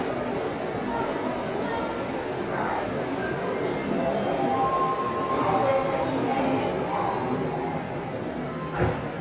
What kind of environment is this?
subway station